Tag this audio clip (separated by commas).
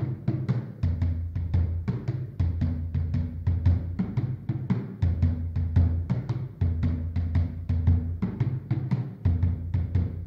Music, Musical instrument, Drum